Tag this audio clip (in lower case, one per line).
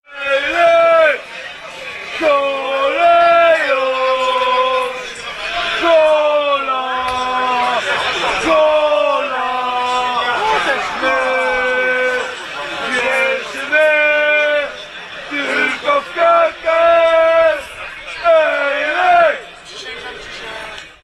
human voice
singing